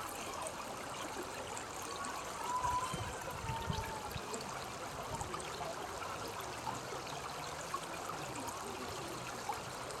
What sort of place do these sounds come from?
park